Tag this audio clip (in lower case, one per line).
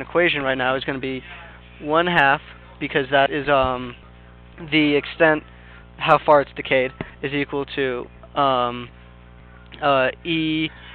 speech